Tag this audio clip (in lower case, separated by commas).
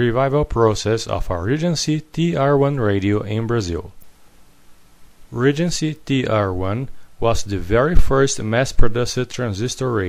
speech